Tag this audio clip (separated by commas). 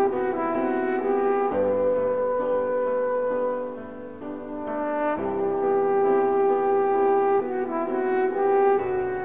Music